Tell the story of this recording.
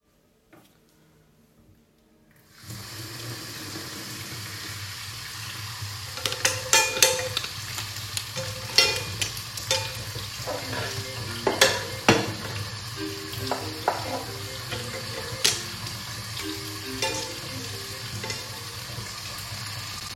I was filling a pot with water in the sink, while I was rearanging the dishes and suddenly my phone started ringing from the other room.